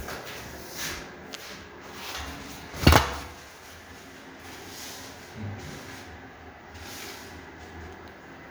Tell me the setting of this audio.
restroom